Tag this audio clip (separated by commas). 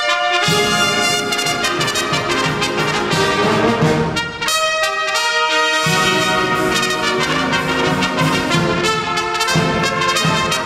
Trombone, Percussion, Music, Orchestra, Trumpet, French horn, Brass instrument